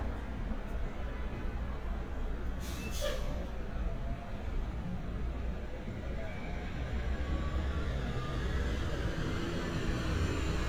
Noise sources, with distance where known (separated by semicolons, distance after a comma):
large-sounding engine, near